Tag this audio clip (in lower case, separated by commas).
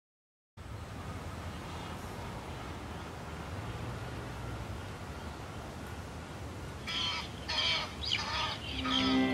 outside, urban or man-made, music